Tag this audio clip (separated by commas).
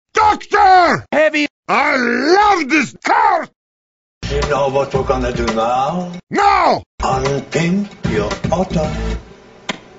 Speech, Music